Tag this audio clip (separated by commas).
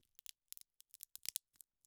Crack